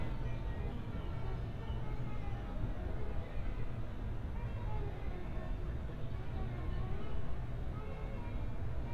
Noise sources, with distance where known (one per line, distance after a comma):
music from a fixed source, far